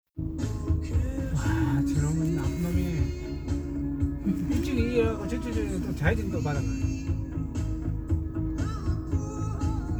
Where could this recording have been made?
in a car